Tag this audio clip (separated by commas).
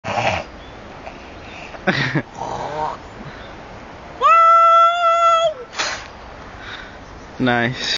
Speech